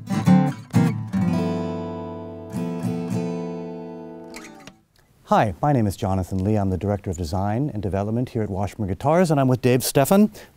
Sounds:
Musical instrument, Speech, Music, Guitar

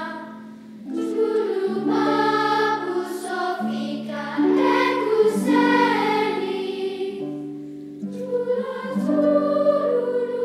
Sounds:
Music

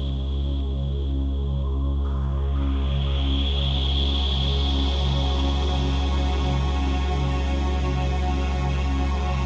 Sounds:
Music, Electronica

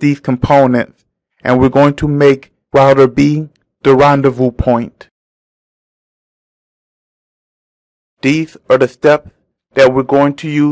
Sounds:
Speech

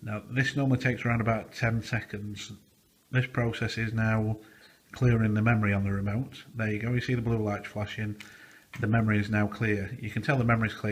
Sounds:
Speech

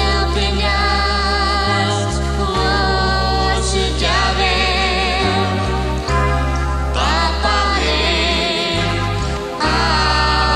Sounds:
Female singing, Male singing, Music

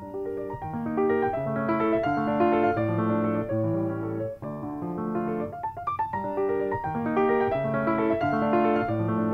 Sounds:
Music

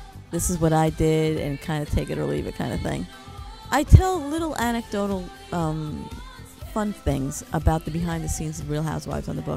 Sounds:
Speech, Music

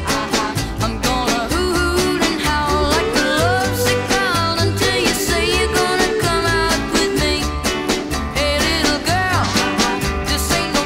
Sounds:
Pop music, Music

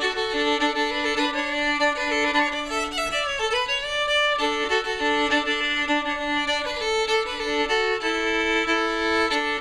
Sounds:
Music, Musical instrument, Violin

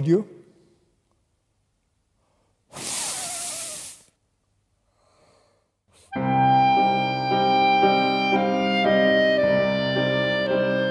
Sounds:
playing clarinet

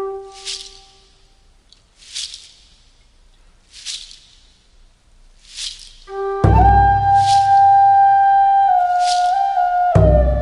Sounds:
Music

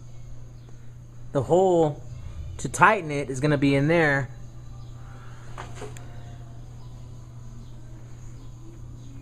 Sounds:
Speech

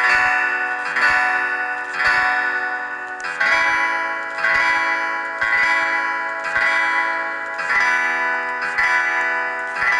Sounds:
Music

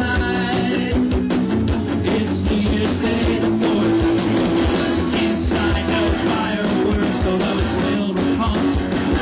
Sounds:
Music, Jazz, Rhythm and blues

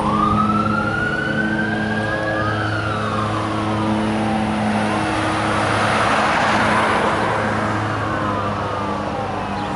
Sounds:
Fire engine, Truck, Vehicle

